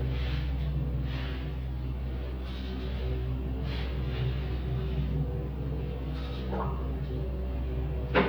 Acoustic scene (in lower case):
elevator